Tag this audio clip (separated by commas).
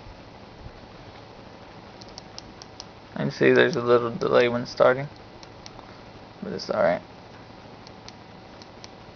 inside a small room, Speech